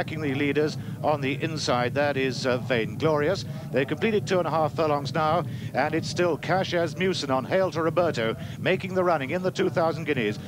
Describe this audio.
A man speaks excitedly